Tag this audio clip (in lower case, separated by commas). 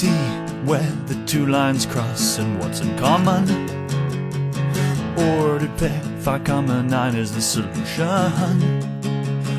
music